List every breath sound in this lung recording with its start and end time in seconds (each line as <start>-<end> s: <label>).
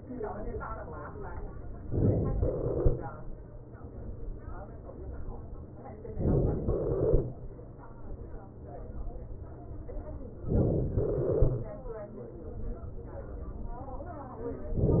6.18-6.70 s: inhalation
6.70-7.33 s: exhalation
10.45-10.92 s: inhalation
10.92-11.98 s: exhalation